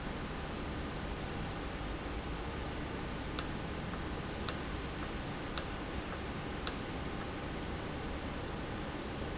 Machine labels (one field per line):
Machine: valve